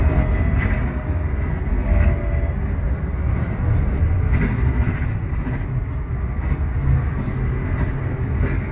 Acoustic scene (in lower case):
bus